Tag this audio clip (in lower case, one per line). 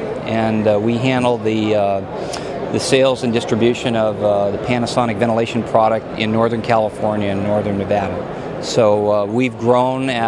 speech